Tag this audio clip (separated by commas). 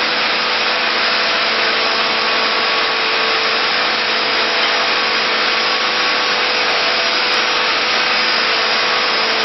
Vehicle